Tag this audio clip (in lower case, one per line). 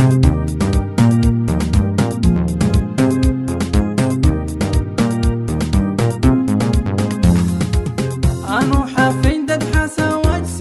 music